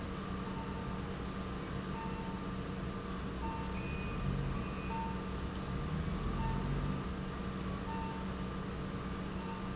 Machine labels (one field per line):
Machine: pump